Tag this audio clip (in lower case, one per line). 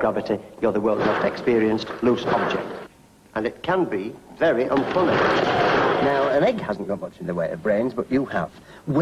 speech